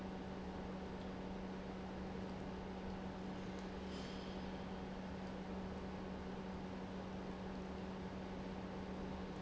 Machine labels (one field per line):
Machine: pump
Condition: normal